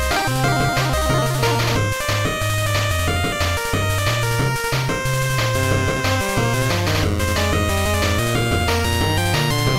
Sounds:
Music

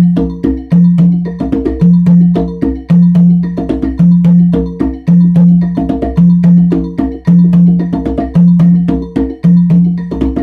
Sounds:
playing congas

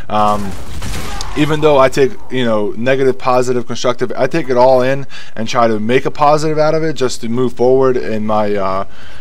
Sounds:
Speech

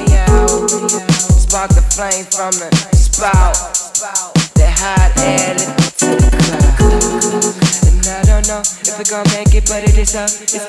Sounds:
Music

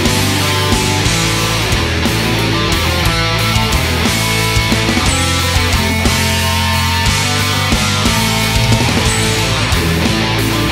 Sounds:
Grunge, Heavy metal, Music

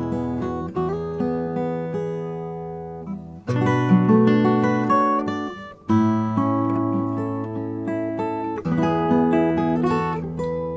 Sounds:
Plucked string instrument, Acoustic guitar, Musical instrument, Guitar, Music, Strum

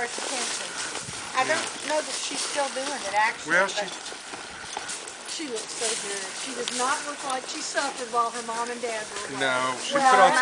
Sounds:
Speech, Clip-clop, Animal, Horse

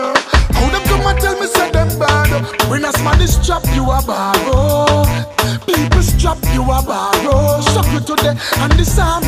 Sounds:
Music, Afrobeat

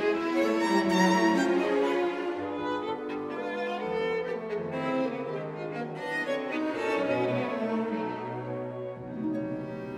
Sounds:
fiddle, Musical instrument, Music

